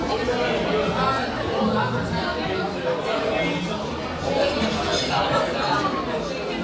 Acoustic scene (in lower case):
crowded indoor space